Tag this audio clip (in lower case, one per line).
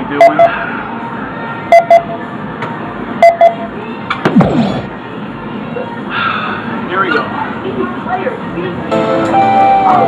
music
speech